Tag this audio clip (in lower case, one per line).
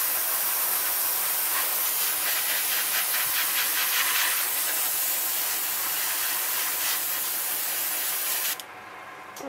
speech